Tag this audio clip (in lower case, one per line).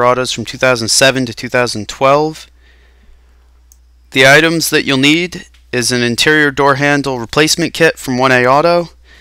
speech